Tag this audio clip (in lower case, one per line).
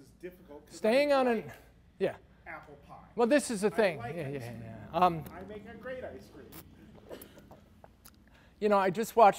speech